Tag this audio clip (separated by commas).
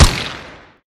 gunfire, Explosion